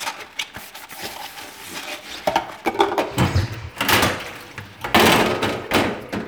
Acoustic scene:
kitchen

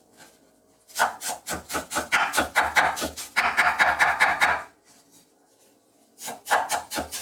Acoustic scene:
kitchen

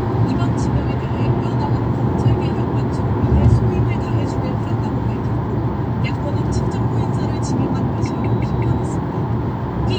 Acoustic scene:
car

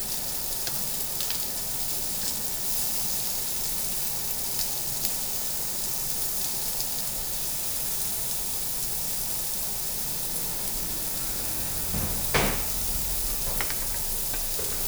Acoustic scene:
restaurant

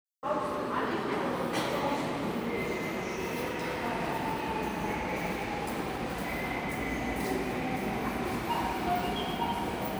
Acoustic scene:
subway station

